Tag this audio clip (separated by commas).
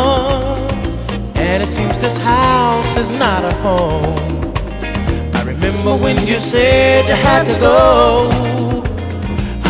Music